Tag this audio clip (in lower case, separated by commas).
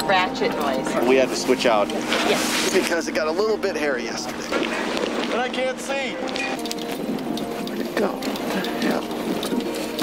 music, speech